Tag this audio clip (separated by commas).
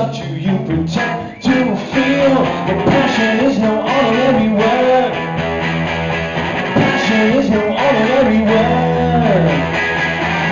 Independent music, Music